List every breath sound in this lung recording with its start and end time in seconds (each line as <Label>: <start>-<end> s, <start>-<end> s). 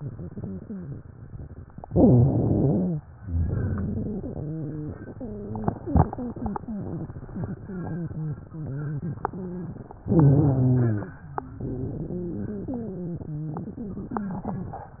Inhalation: 1.86-3.00 s, 10.04-11.23 s
Exhalation: 3.26-4.50 s
Wheeze: 0.00-0.97 s, 1.86-3.00 s, 3.26-9.87 s, 10.04-11.23 s, 11.31-14.78 s